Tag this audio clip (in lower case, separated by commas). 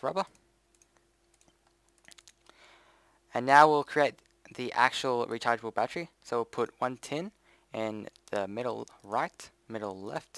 speech